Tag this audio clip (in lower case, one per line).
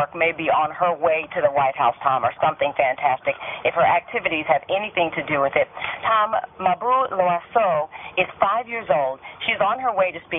speech